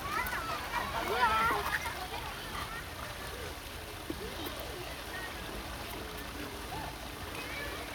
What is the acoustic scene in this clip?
park